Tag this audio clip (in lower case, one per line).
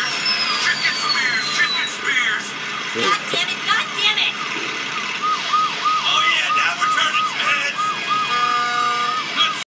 speech